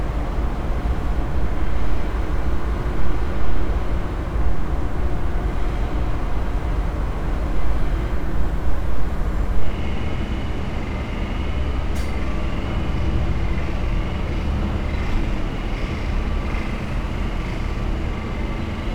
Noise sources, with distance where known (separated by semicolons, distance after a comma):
engine of unclear size